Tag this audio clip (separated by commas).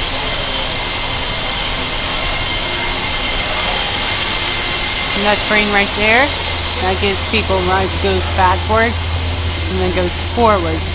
Train, Vehicle, Speech